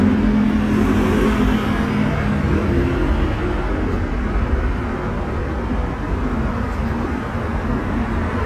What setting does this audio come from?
street